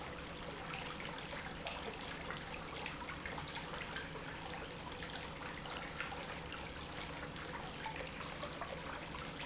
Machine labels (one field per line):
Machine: pump